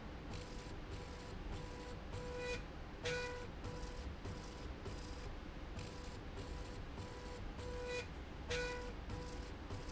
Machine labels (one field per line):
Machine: slide rail